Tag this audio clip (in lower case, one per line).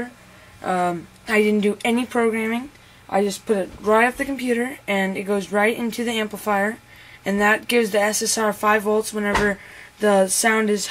speech